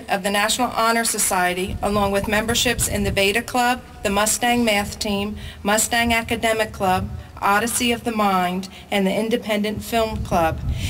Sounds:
woman speaking
speech
monologue

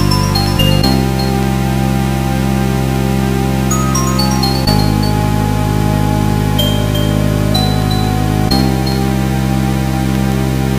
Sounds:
music

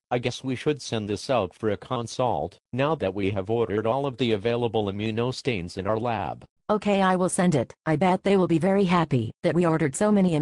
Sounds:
speech synthesizer

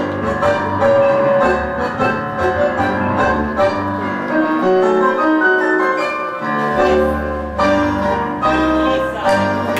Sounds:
opera
music of latin america

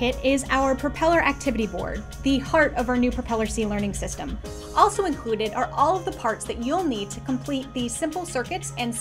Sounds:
music
speech

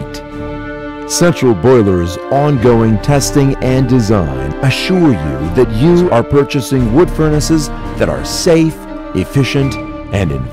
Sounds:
music
speech

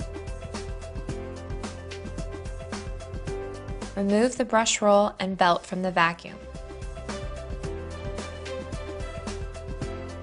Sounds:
music

